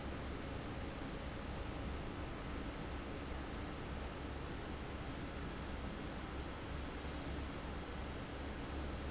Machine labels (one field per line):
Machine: fan